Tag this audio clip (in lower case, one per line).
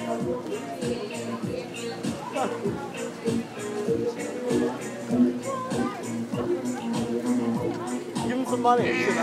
female singing
speech
music